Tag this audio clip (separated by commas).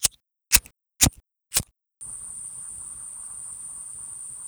Fire